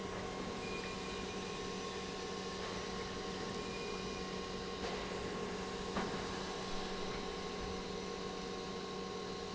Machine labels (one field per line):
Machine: pump